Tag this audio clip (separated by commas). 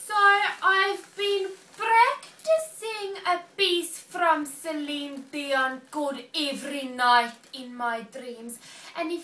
Speech